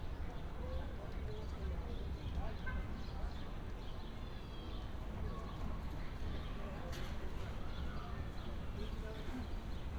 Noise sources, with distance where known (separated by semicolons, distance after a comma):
car horn, far; person or small group talking